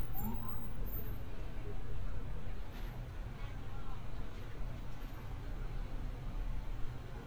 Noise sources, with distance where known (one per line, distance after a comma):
person or small group talking, far